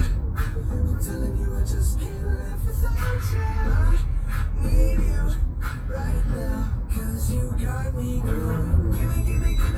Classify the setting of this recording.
car